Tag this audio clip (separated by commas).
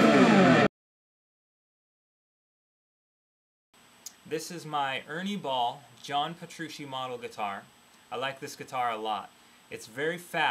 Speech, Music